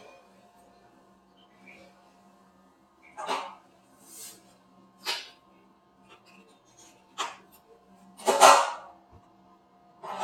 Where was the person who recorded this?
in a restroom